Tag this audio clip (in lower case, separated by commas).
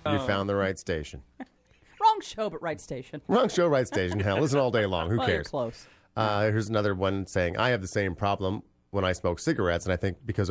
radio, speech